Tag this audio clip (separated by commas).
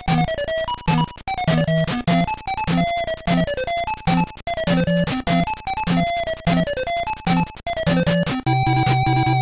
Music